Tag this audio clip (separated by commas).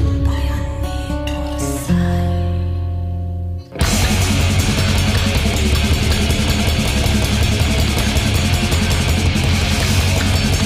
Music